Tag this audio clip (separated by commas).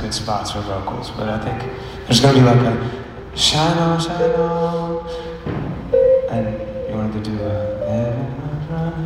Music, Speech